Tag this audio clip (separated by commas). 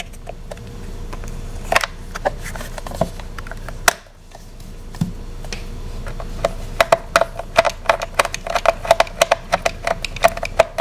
inside a small room